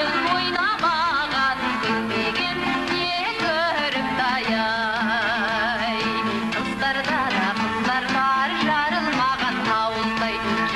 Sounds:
traditional music, soundtrack music, music

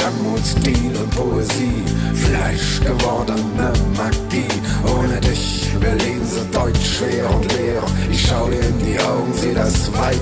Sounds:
music, musical instrument

